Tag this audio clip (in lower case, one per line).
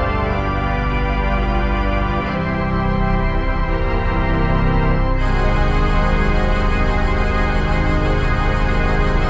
playing electronic organ